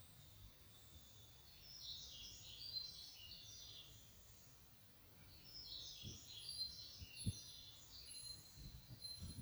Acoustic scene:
park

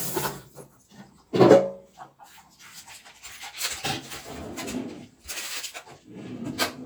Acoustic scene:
kitchen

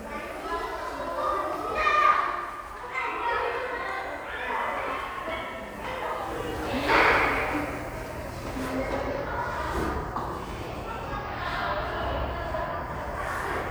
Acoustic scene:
crowded indoor space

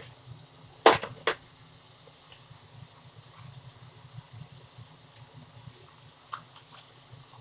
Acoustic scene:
kitchen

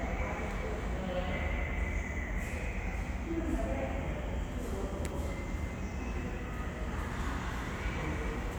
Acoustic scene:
subway station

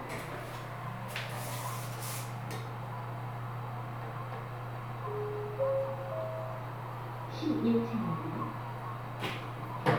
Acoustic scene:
elevator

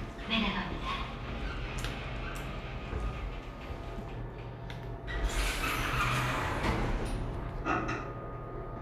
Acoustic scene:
elevator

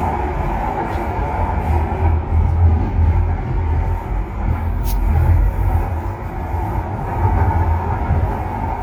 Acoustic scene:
subway train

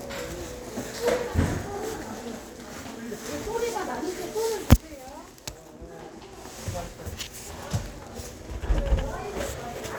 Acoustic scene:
crowded indoor space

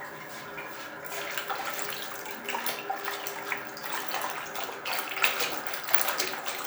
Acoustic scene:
restroom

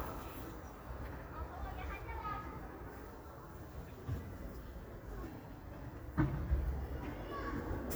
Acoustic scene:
residential area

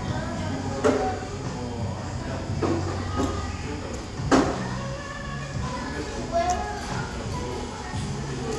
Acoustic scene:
cafe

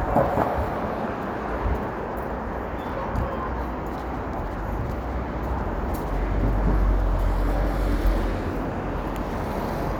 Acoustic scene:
street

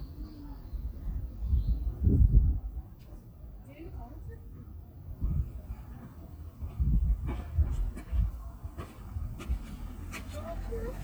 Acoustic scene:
residential area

